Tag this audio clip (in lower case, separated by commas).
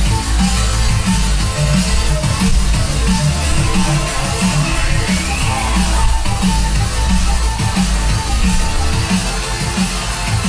music, electronic music, dubstep, musical instrument, drum kit